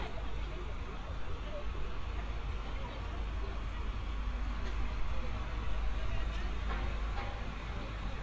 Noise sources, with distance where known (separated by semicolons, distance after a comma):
large-sounding engine, near; person or small group talking, far